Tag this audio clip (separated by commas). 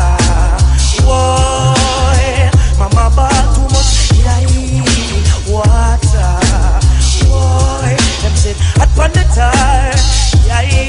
Music